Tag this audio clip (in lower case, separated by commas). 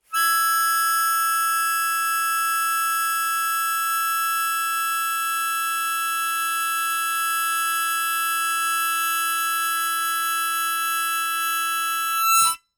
musical instrument, music, harmonica